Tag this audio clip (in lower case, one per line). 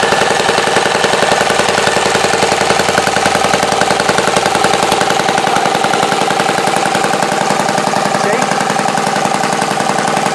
speech
vehicle
engine